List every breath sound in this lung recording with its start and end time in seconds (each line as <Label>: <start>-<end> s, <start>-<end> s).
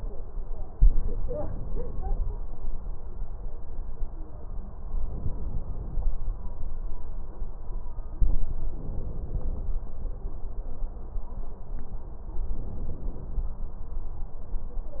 Inhalation: 4.97-6.00 s, 8.76-9.79 s, 12.54-13.57 s